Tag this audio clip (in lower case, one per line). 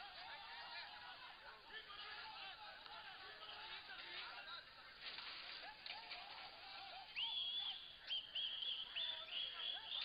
speech